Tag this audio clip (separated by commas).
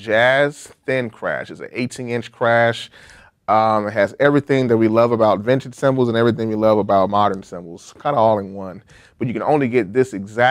Speech